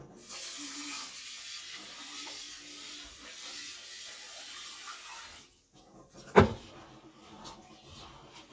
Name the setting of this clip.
kitchen